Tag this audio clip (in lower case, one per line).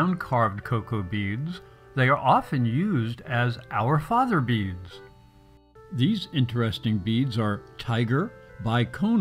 speech
music